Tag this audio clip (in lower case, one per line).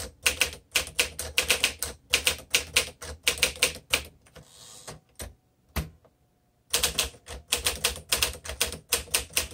typing on typewriter